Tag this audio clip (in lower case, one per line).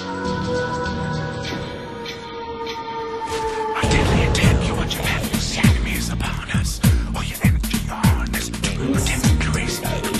music
speech